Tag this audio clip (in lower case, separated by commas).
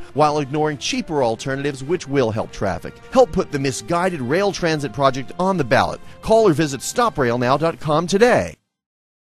music, speech